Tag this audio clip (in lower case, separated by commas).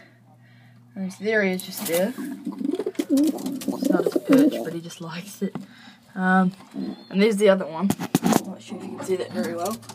speech, bird, coo